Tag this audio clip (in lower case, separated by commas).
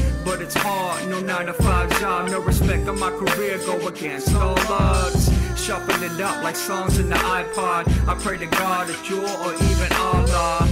music